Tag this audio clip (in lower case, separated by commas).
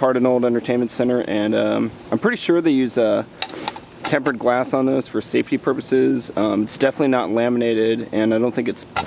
speech